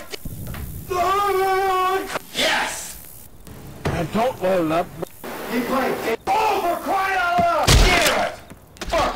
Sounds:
Speech, Sound effect

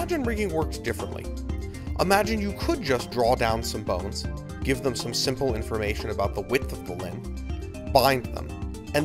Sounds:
Music, Speech

